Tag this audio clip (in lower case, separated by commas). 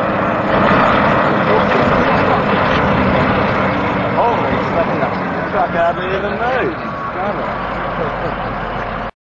speech, truck, vehicle